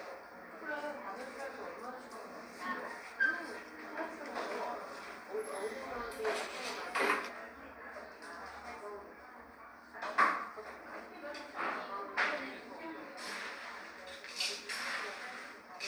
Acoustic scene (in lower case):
cafe